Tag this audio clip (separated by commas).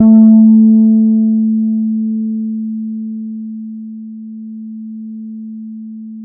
Musical instrument, Plucked string instrument, Music, Guitar, Bass guitar